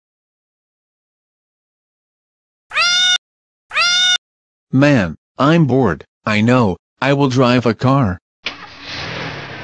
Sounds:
Speech

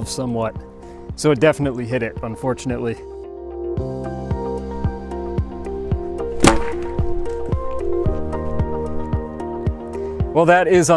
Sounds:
firing cannon

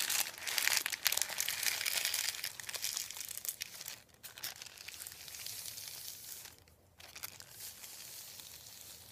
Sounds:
ripping paper

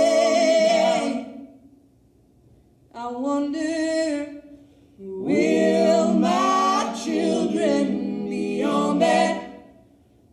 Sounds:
Music

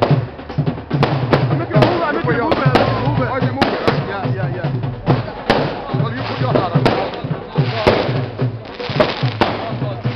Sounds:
Firecracker, Speech, outside, urban or man-made, Music

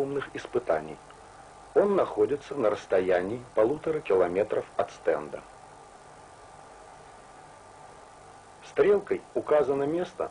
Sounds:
Speech

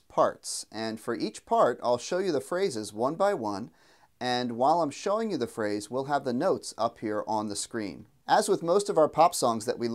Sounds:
Speech

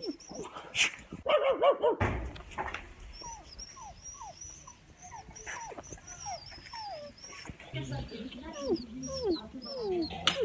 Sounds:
dog whimpering

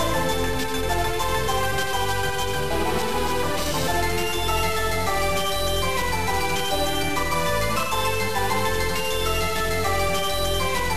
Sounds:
Soundtrack music, Music

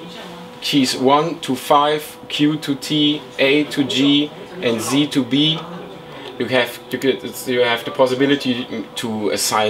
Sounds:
Speech

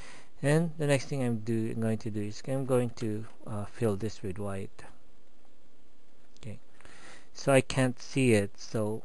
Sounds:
Speech

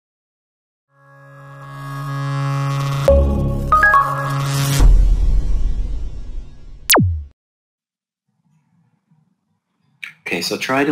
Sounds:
Music

